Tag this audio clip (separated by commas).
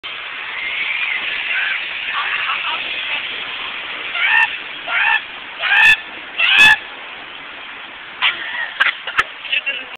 Speech